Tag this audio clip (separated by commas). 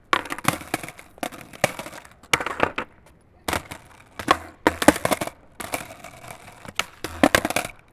Skateboard, Vehicle